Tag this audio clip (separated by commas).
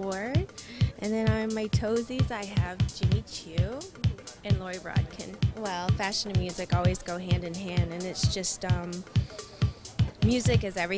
Music, Speech